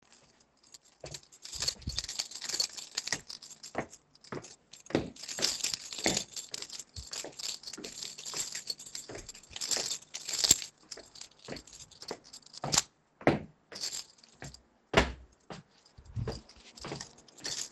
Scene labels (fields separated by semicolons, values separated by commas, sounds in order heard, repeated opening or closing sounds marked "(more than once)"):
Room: hallway; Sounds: footsteps, keys